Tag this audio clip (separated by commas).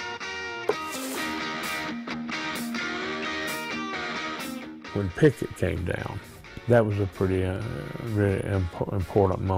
Music, Speech